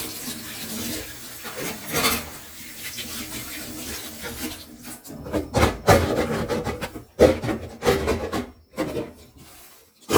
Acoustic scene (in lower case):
kitchen